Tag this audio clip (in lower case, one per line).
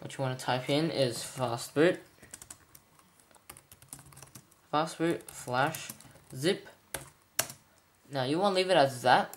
speech